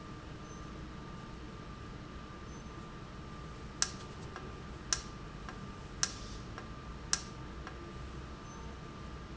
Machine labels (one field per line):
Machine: valve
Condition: normal